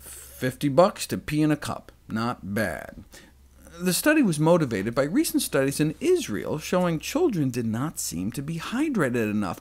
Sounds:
Speech

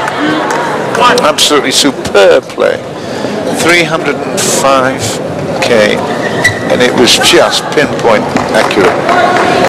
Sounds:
Speech

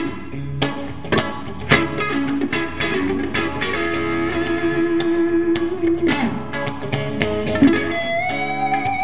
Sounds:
Electric guitar, Bass guitar, Musical instrument, Music, Guitar, playing bass guitar

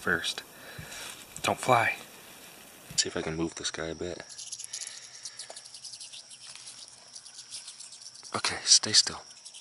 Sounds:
mouse squeaking

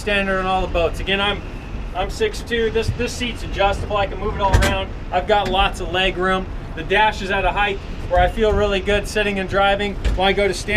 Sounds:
Speech

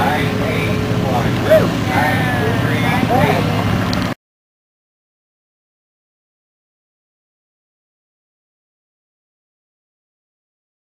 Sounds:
Speech

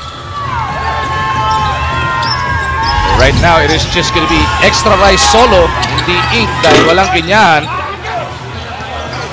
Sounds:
Speech

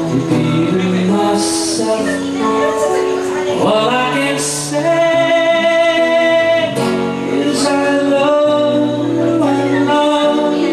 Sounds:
Singing, Speech, Music

